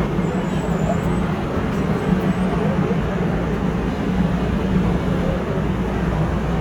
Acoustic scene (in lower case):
subway station